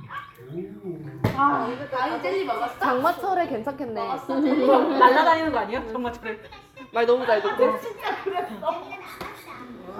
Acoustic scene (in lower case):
crowded indoor space